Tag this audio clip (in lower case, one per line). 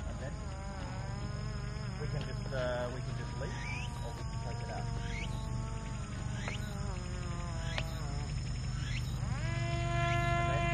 speech